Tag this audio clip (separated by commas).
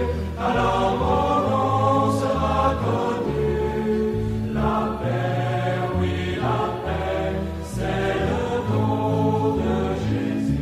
Mantra, Music